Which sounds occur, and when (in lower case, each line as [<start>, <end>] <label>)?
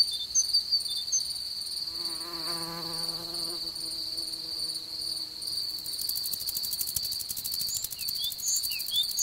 [0.00, 9.22] insect
[0.07, 0.25] beep
[0.28, 0.78] bird song
[0.83, 1.03] beep
[1.04, 1.27] bird song
[1.84, 6.23] buzz
[6.04, 9.03] rattle
[7.63, 8.05] bird song
[8.18, 9.00] bird song
[9.16, 9.22] bird song